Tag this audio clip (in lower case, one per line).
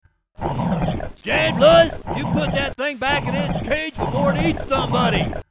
animal